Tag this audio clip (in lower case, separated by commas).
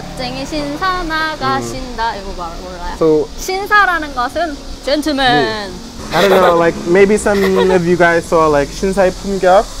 speech, outside, urban or man-made